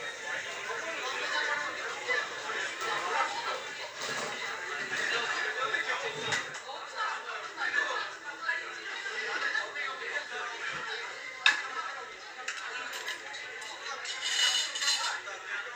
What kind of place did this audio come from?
crowded indoor space